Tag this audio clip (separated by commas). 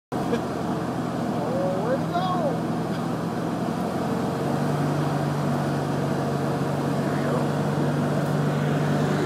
Speech, Car, Vehicle